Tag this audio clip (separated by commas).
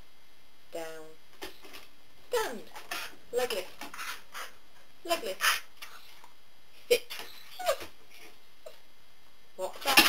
Speech